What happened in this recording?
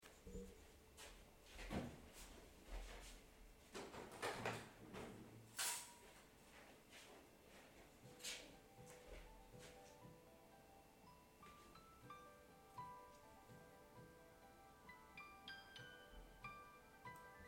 I stood up and opened the window. Then my phone started ringing.